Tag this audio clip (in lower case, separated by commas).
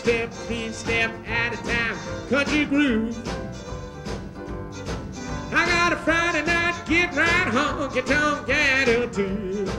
music, country, musical instrument, violin